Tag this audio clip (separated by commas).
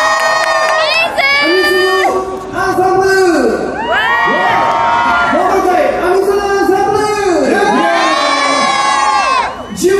Speech